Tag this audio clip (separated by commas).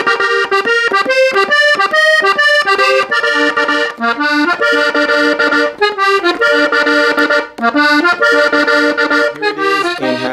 playing accordion